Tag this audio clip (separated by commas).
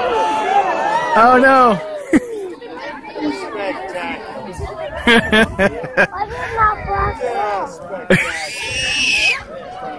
Speech